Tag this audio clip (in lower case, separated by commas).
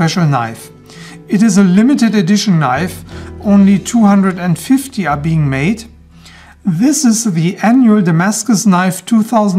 music, speech